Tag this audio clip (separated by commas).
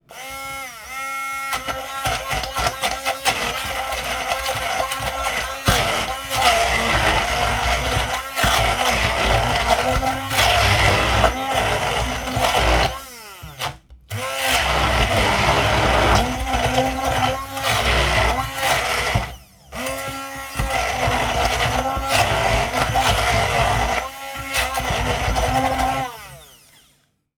Domestic sounds